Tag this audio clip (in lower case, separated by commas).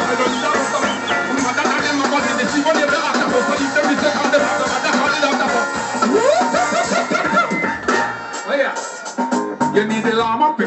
singing, music, speech